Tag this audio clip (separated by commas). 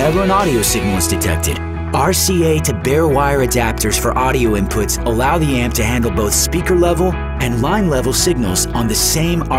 Speech, Music